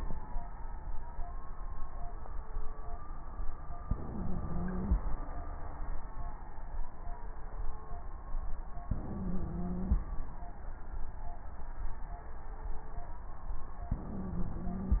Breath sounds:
Inhalation: 3.89-5.06 s, 8.88-10.05 s, 13.91-15.00 s
Wheeze: 3.89-5.06 s, 8.88-10.05 s, 13.91-15.00 s

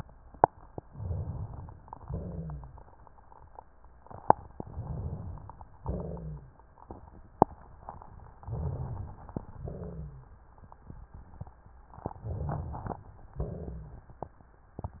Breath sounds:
Inhalation: 0.82-1.81 s, 4.60-5.62 s, 8.39-9.38 s, 12.05-13.03 s
Exhalation: 1.99-2.87 s, 5.76-6.59 s, 9.50-10.32 s, 13.35-14.18 s
Rhonchi: 2.01-2.85 s, 5.79-6.57 s, 9.58-10.32 s, 13.35-14.05 s
Crackles: 12.01-13.01 s

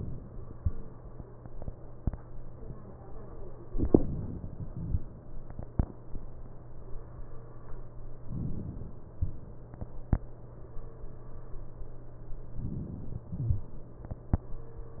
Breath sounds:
Inhalation: 8.31-9.20 s, 12.69-13.57 s

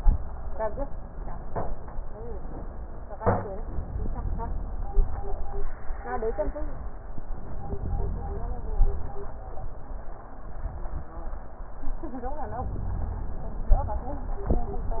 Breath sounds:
Inhalation: 7.14-8.64 s
Exhalation: 8.64-9.30 s

